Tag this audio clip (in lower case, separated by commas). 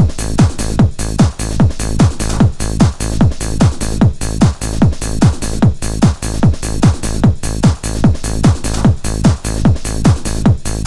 music, disco